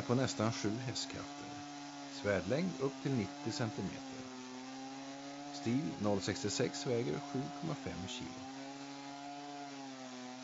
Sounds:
Speech

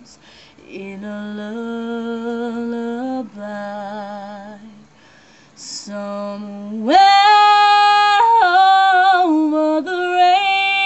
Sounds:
Female singing

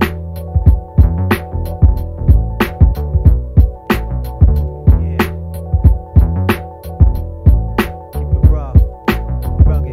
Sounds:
Music

